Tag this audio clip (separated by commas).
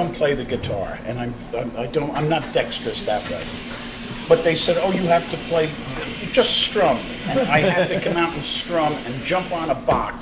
Speech